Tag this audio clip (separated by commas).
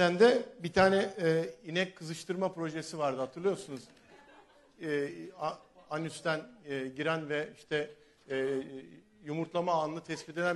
Speech